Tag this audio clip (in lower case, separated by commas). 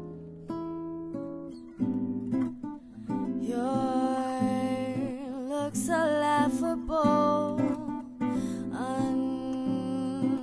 female singing, music